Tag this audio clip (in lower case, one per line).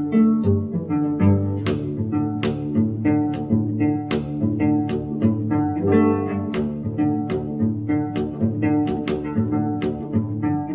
pizzicato
musical instrument
music